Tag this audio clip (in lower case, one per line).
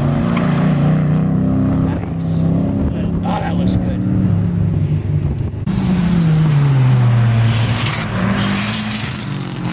auto racing
vehicle
motor vehicle (road)
outside, rural or natural
car